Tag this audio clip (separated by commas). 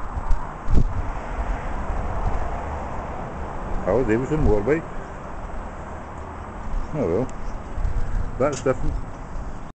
Speech, Vehicle